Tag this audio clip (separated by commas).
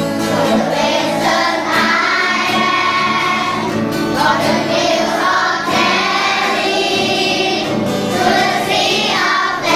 Child singing, Music